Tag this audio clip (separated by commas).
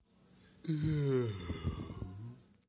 Human voice